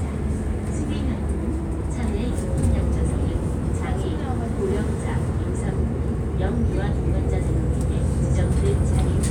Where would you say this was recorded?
on a bus